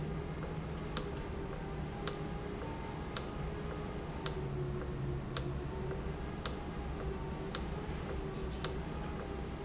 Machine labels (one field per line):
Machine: valve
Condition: normal